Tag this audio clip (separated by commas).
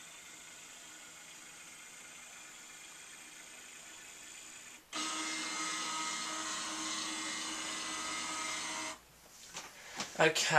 Printer